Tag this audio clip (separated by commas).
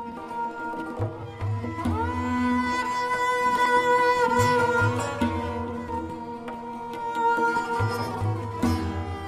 Tabla, Drum, Percussion